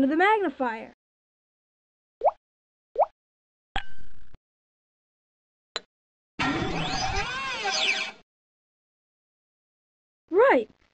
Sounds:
plop, music, inside a small room, speech

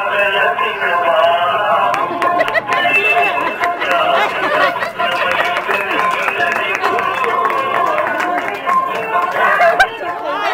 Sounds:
inside a large room or hall, singing, music

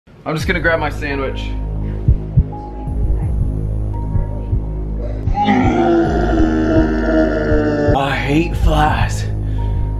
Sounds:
inside a small room, speech, music

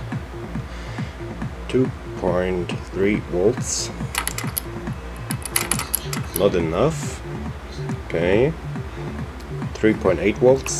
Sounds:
speech, music

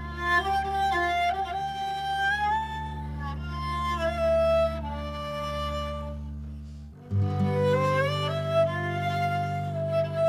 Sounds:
music, violin, musical instrument

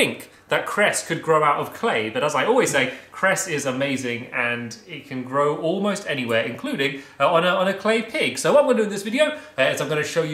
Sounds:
speech

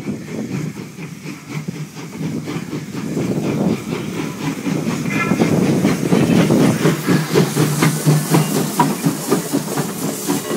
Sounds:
heavy engine (low frequency), engine, vehicle

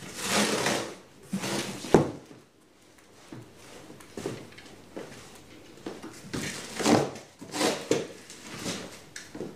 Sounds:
drawer open or close

